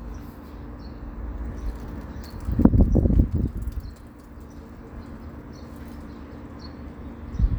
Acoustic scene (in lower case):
residential area